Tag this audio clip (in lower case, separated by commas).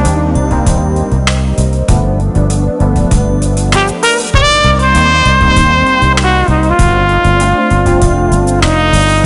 music